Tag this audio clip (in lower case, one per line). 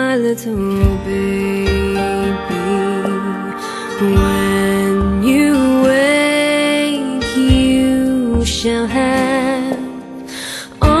music